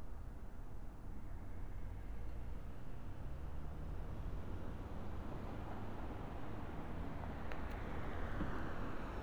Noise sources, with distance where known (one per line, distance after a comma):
background noise